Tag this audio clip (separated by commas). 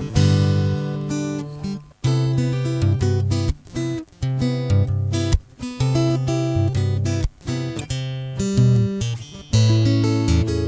Plucked string instrument, Acoustic guitar, Musical instrument, Electric guitar, Music, Strum, Guitar